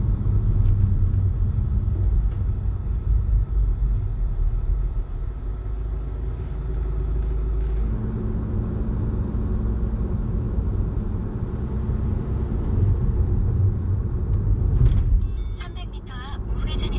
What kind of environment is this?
car